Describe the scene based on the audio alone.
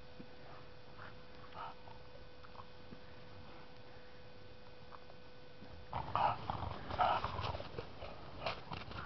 A dog growling and panting